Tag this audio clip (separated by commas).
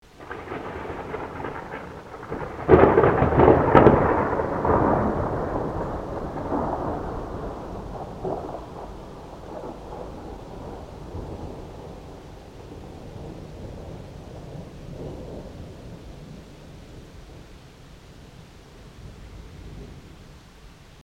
Rain, Thunder, Thunderstorm, Water